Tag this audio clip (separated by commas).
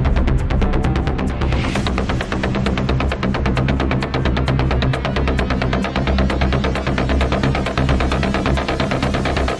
Music